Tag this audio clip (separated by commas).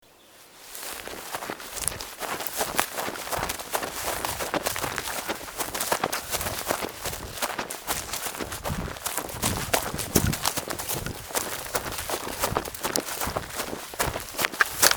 Run